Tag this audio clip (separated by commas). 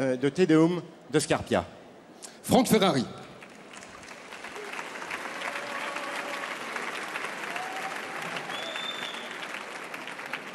Speech